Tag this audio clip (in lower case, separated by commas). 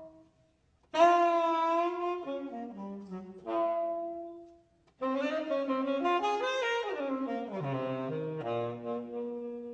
inside a large room or hall, music, saxophone, classical music, playing saxophone, musical instrument